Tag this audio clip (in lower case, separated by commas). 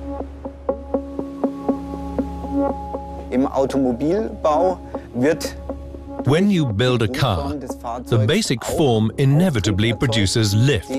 speech synthesizer